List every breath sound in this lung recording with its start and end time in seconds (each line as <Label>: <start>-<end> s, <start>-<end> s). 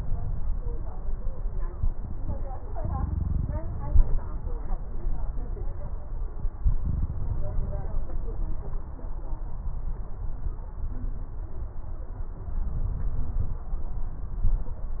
No breath sounds were labelled in this clip.